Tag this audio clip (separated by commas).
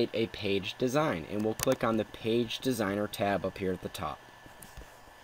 Speech